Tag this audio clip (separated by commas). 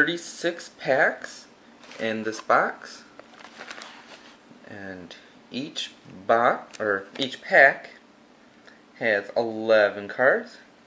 inside a small room, Speech